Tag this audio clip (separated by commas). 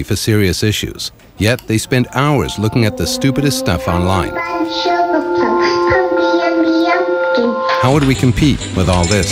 Music, inside a small room, Speech